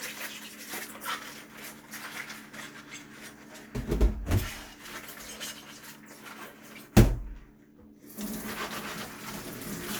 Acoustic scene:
kitchen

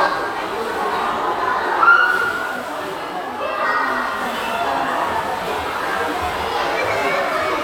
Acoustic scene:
crowded indoor space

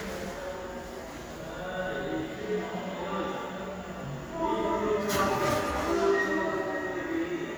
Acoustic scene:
subway station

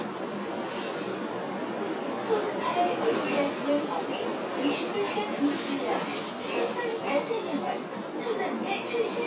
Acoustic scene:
bus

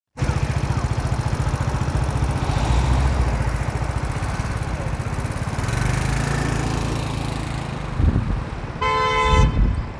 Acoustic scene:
street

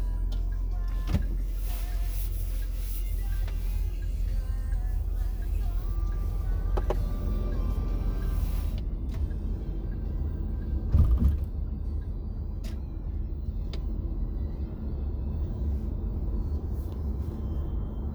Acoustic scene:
car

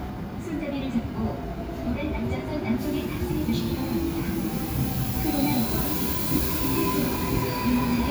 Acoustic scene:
subway station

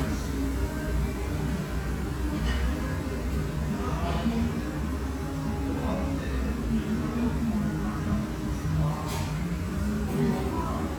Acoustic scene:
restaurant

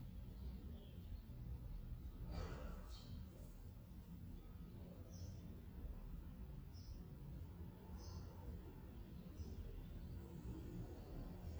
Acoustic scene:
residential area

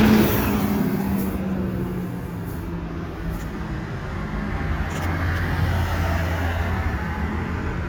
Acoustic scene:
street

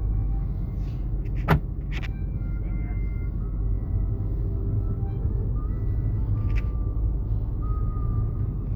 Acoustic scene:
car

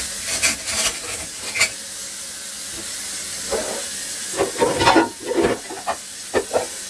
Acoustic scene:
kitchen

